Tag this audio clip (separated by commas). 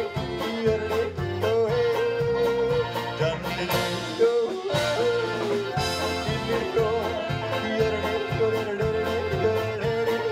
yodelling